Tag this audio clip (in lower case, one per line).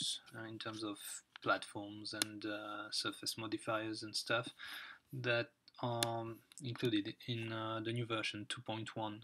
speech